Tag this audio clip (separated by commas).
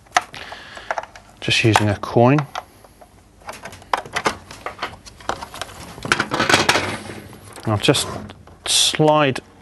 Speech